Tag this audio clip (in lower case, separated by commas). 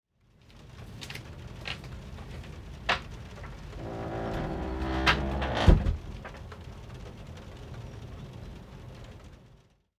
rain, water